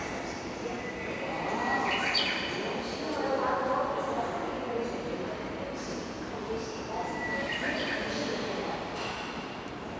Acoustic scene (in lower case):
subway station